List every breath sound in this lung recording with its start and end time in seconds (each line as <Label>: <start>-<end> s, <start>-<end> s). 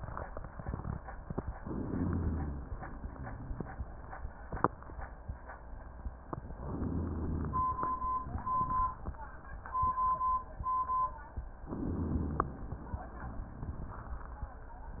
Inhalation: 1.58-2.69 s, 6.56-7.81 s, 11.69-12.80 s
Exhalation: 2.69-4.26 s, 7.81-9.32 s
Rhonchi: 1.91-2.73 s, 6.73-7.82 s, 11.87-12.59 s